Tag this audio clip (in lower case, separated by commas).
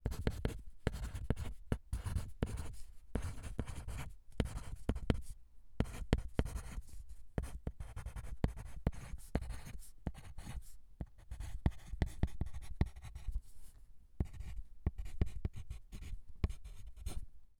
writing, home sounds